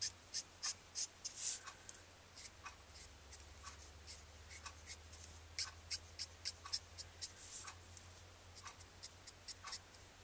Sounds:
inside a small room

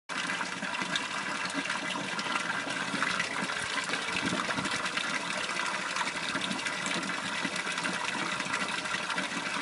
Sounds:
water, liquid, trickle

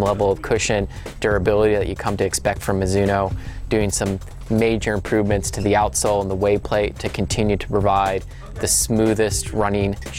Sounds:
inside a small room, speech, music

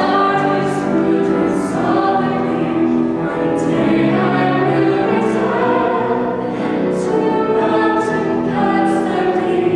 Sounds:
gospel music, music, singing, choir

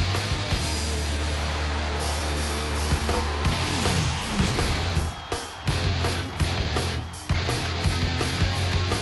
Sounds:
music

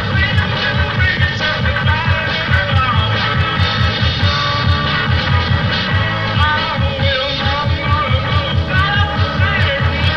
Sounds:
music, funk

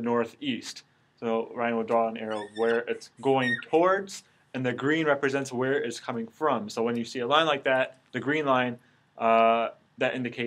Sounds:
speech

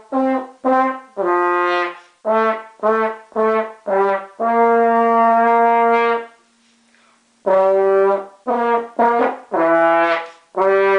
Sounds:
playing french horn

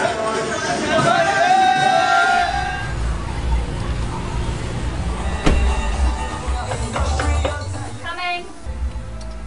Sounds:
music, speech

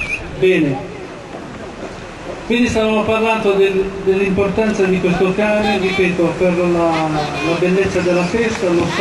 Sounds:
speech

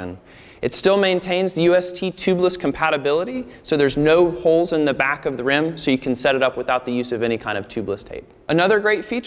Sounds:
speech

